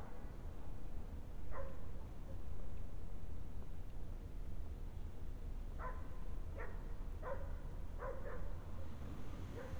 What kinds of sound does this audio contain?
dog barking or whining